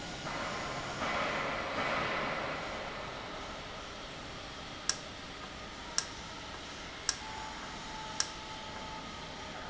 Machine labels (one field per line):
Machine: valve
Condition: normal